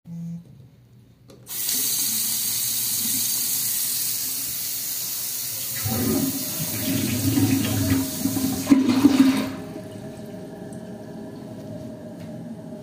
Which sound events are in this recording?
running water, toilet flushing